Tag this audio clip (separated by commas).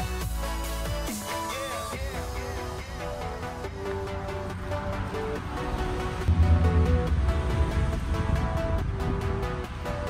lighting firecrackers